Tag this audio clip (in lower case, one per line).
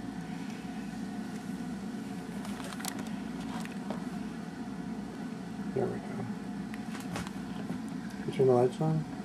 speech